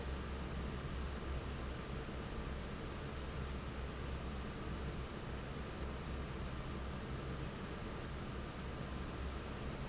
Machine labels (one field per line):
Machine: fan